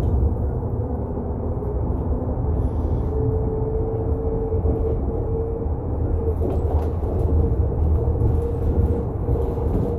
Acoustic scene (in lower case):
bus